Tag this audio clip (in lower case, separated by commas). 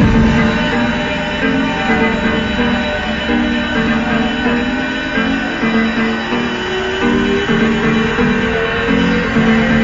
music